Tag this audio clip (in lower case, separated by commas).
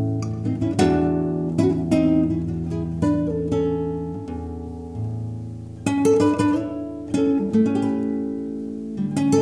guitar, acoustic guitar, plucked string instrument, music, strum, musical instrument